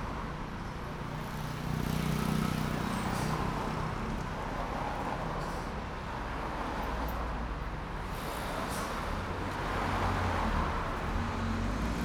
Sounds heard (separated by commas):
motorcycle, bus brakes, bus compressor, motorcycle engine accelerating, car wheels rolling, bus, car engine accelerating, bus engine accelerating, car